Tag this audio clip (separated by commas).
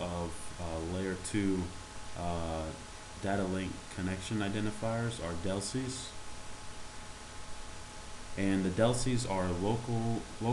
Speech